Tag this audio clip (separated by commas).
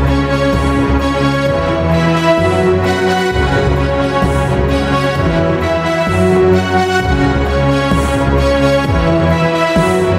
Orchestra, Electronic music, Dubstep, Music